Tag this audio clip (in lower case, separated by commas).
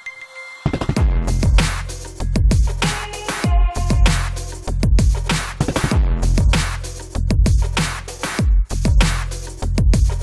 music